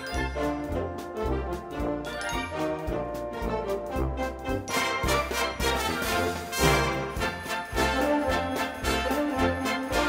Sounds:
music

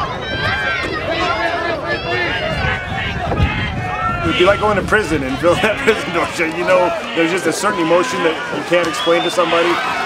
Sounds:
speech

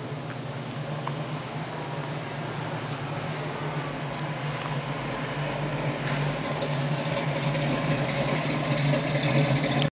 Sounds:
vehicle, car

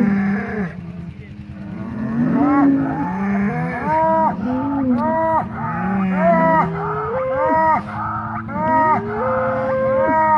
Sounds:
bull bellowing

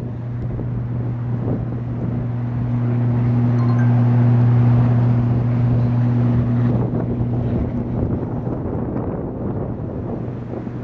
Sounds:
vehicle

